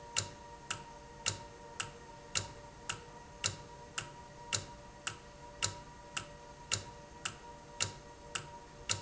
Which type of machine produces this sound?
valve